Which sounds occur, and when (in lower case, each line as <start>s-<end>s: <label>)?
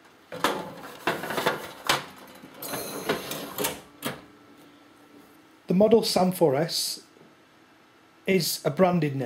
0.0s-9.2s: mechanisms
0.2s-0.8s: generic impact sounds
1.0s-1.7s: generic impact sounds
1.0s-1.5s: surface contact
1.9s-2.1s: generic impact sounds
2.6s-3.8s: drawer open or close
4.0s-4.1s: generic impact sounds
4.5s-4.8s: surface contact
5.1s-5.2s: generic impact sounds
5.6s-7.1s: man speaking
7.1s-7.3s: generic impact sounds
8.2s-9.2s: man speaking